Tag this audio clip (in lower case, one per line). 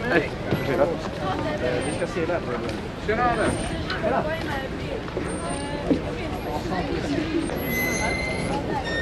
speech